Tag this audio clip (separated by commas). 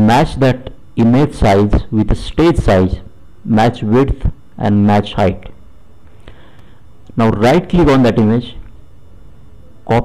Speech